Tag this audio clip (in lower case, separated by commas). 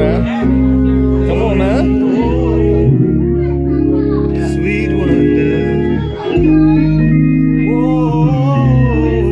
playing hammond organ